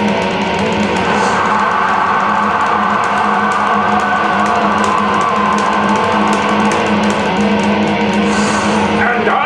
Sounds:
musical instrument, music, electric guitar, speech, guitar

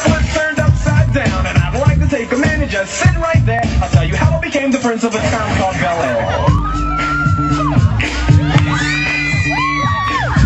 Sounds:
scratching (performance technique)

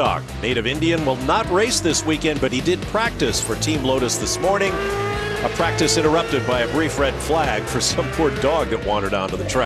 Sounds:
music, speech

